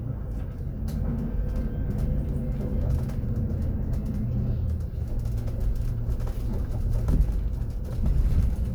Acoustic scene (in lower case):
bus